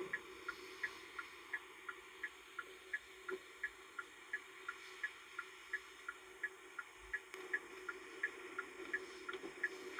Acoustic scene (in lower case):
car